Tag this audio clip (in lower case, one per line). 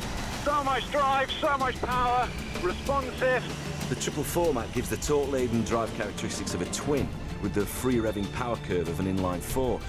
vehicle
music
vroom
speech